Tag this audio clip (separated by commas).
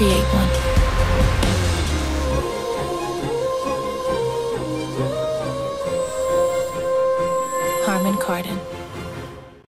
Speech, Music